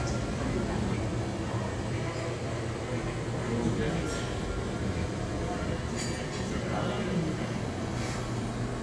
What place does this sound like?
crowded indoor space